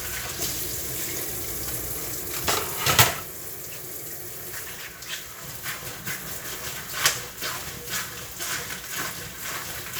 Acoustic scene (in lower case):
kitchen